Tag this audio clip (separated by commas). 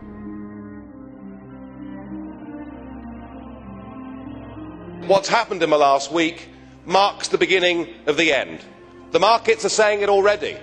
Speech, Music